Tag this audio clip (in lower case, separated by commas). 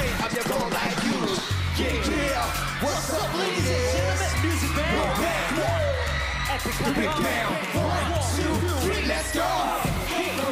music